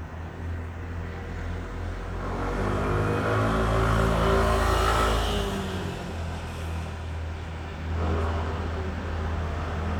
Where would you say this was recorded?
on a street